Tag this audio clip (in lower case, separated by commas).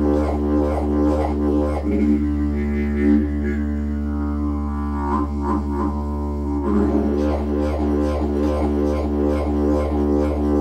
music, musical instrument, didgeridoo